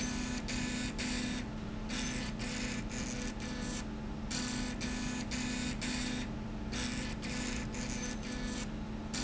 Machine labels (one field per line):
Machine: slide rail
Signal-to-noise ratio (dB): -6 dB